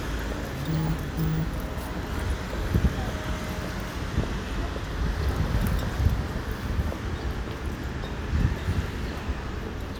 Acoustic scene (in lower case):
residential area